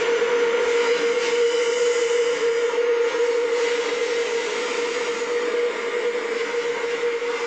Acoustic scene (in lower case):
subway train